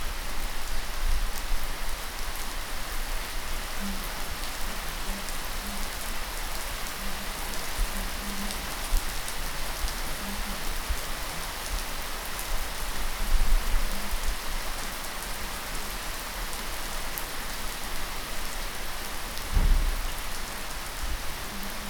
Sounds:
Rain, Water

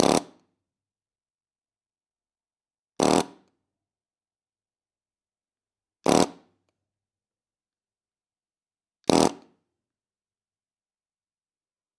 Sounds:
Tools

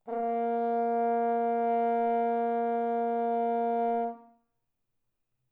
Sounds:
Brass instrument, Musical instrument, Music

